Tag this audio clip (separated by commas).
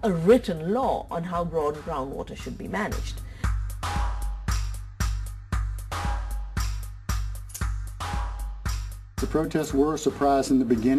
Music, Speech